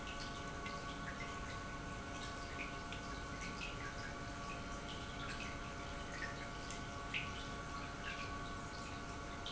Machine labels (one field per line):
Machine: pump